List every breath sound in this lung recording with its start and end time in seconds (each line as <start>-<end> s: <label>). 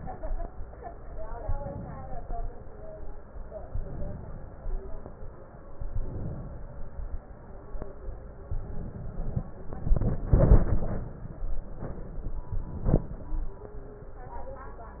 1.42-2.52 s: inhalation
3.70-4.82 s: inhalation
5.79-6.91 s: inhalation
8.46-9.46 s: inhalation
11.52-12.52 s: inhalation
11.52-12.52 s: crackles